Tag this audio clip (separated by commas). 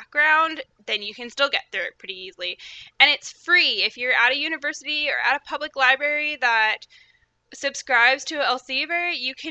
Speech